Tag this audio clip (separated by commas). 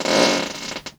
Fart